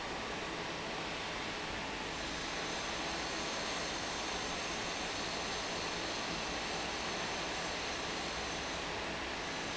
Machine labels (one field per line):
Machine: fan